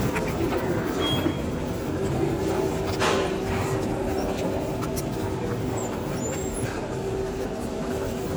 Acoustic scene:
subway station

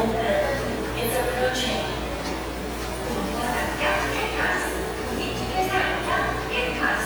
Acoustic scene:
subway station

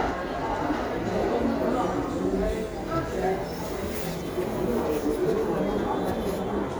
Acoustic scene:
crowded indoor space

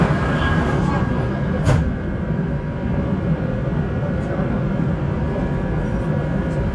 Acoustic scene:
subway train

